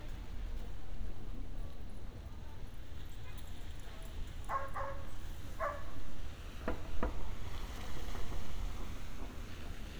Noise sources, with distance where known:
non-machinery impact, far; dog barking or whining, far

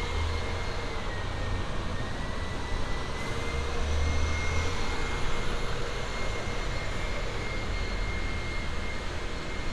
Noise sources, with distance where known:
large-sounding engine

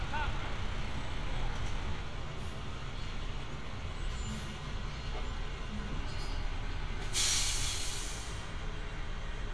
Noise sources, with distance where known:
unidentified human voice

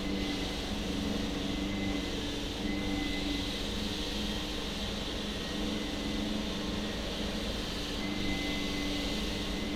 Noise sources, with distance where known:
small-sounding engine

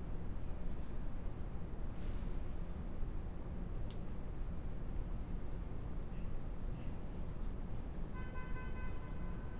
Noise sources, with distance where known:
car horn, far

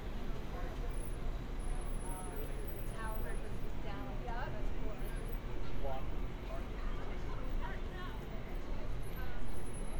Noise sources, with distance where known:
person or small group talking, near

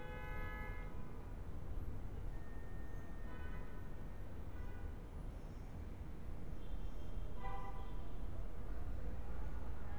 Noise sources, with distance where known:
car horn, far

